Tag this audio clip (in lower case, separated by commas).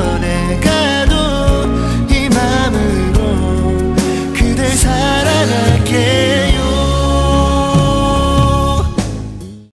music